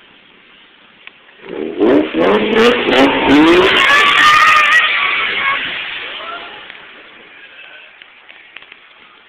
Car engine revving and accelerating hard